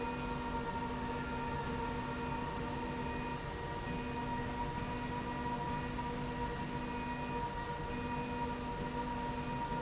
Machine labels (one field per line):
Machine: slide rail